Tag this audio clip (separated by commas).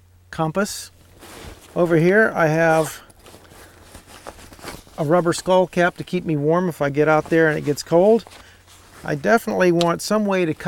Speech